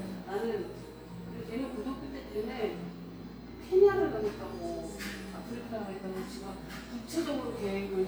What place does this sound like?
cafe